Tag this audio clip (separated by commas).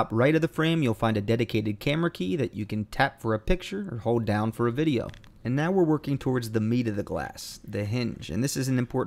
Speech